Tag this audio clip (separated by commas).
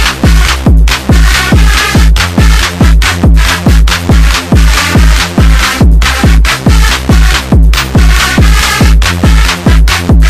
Music, Techno, Electronic music